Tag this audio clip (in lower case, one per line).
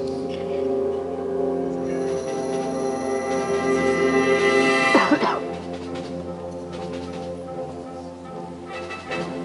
orchestra
music